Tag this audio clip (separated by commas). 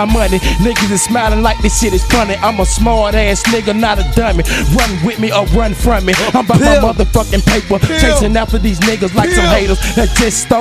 Music, Rapping, Hip hop music